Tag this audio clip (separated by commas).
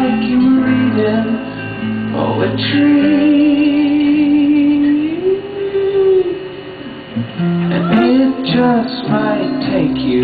Music